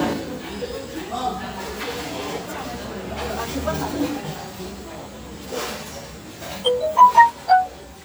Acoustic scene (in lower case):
restaurant